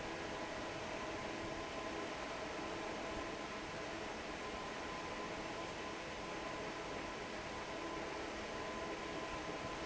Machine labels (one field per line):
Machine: fan